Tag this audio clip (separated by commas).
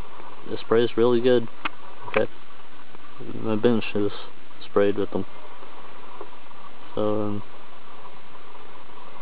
Speech